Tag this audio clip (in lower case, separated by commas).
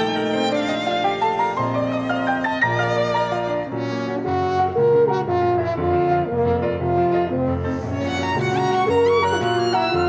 music, fiddle, musical instrument